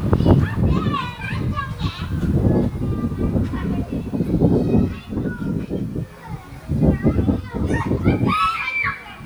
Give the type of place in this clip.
park